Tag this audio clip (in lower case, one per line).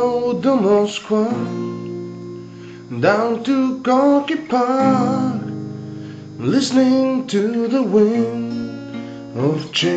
music